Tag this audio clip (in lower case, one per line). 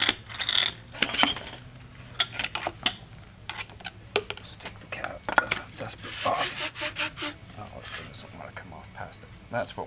speech